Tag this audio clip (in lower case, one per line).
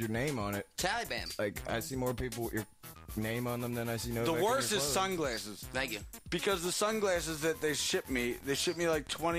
music
speech